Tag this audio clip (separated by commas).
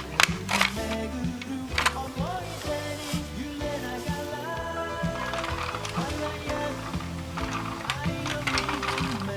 Music